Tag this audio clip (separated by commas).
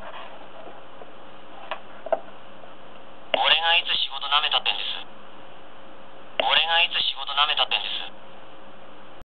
Speech